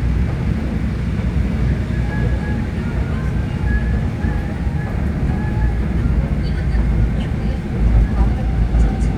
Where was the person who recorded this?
on a subway train